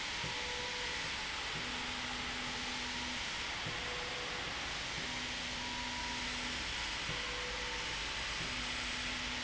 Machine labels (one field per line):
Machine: slide rail